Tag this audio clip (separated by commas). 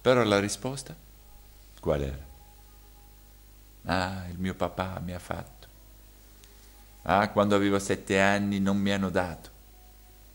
Speech